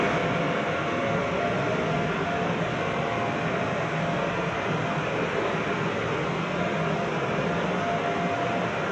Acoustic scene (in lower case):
subway train